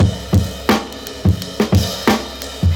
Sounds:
music, drum kit, musical instrument, percussion, drum

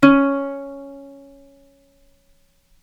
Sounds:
plucked string instrument, musical instrument, music

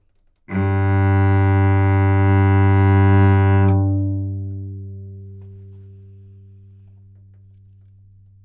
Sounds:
musical instrument, bowed string instrument, music

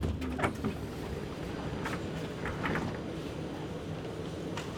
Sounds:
vehicle, metro, rail transport

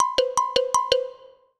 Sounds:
marimba, musical instrument, music, percussion, mallet percussion

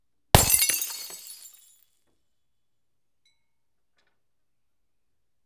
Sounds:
glass, shatter

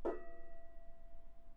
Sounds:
gong, percussion, musical instrument, music

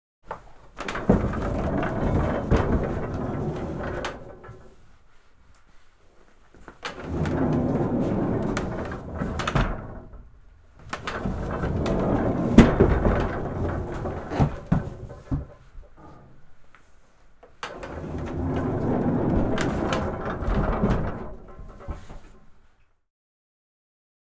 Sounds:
sliding door, door, domestic sounds

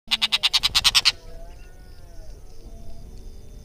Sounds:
wild animals, animal, bird

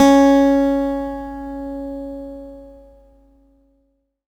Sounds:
music, guitar, plucked string instrument, acoustic guitar, musical instrument

